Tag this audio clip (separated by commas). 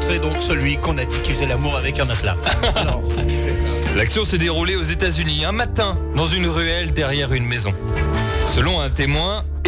Speech, Music